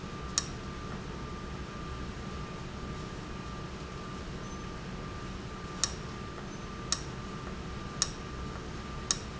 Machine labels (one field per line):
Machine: valve